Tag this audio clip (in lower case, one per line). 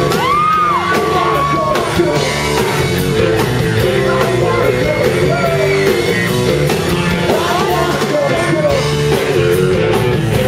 music